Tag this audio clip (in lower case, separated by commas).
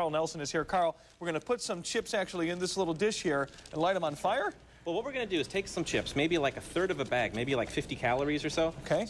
speech